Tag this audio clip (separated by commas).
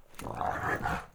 Dog, pets, Animal